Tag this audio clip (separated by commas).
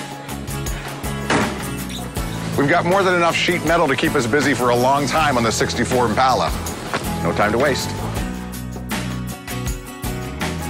Music, Speech